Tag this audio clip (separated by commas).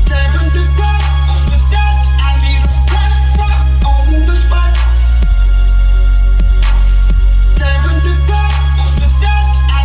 Music